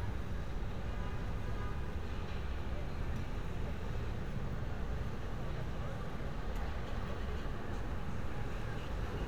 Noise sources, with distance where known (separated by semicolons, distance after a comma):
car horn, far; person or small group talking, far